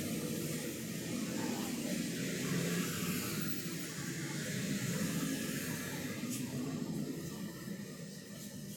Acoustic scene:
street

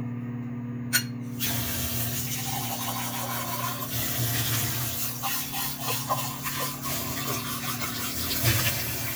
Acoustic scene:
kitchen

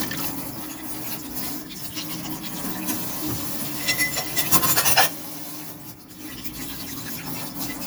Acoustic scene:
kitchen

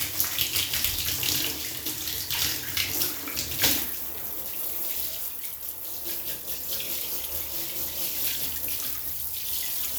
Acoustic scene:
restroom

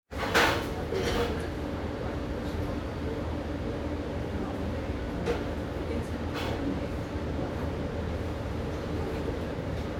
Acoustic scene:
restaurant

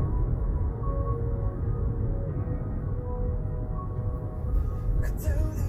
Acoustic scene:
car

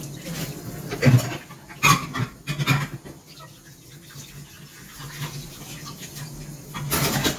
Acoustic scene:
kitchen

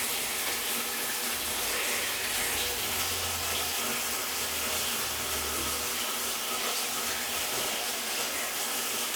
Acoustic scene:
restroom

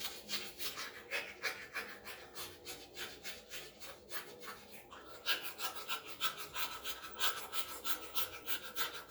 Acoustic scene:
restroom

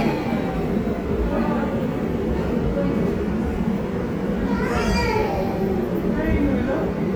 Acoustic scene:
subway station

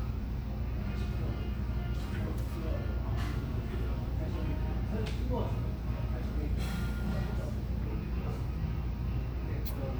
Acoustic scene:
cafe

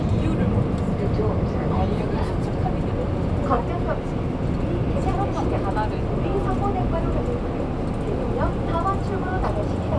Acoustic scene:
subway train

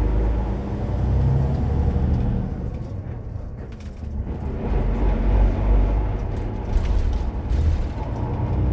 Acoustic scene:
bus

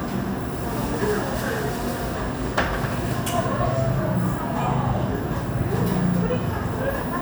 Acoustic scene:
cafe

